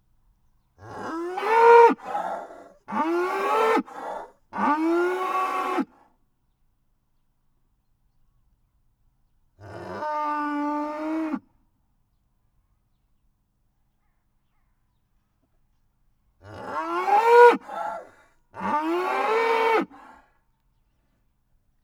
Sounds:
livestock, animal

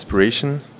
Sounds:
speech, human voice

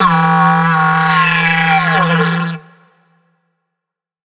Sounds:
musical instrument, music

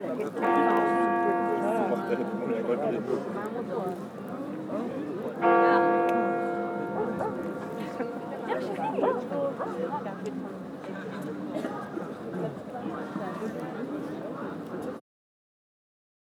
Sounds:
bell, church bell

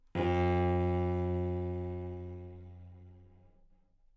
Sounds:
music, musical instrument, bowed string instrument

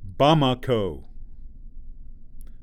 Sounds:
man speaking, human voice, speech

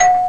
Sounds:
door, alarm, home sounds, doorbell

